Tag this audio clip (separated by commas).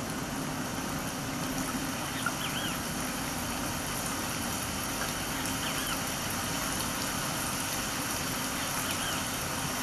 Animal